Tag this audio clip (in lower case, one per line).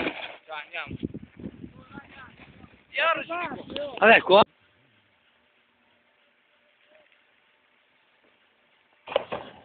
speech